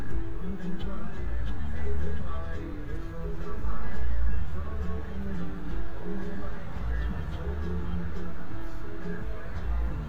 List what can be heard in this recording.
music from an unclear source